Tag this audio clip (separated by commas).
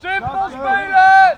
Shout, Yell, Human voice